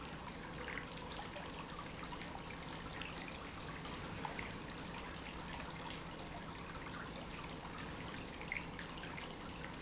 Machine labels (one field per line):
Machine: pump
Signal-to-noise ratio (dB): 6 dB